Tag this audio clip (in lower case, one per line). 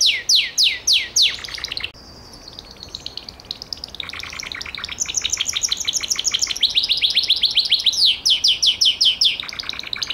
mynah bird singing